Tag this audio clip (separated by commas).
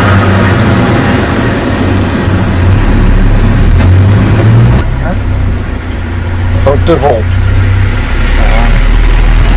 Speech